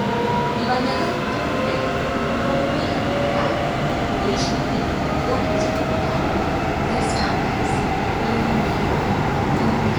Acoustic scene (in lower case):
subway train